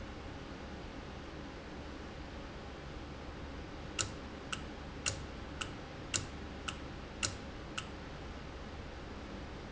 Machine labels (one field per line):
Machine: valve